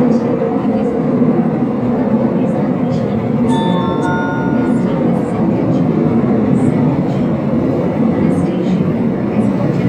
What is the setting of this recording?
subway train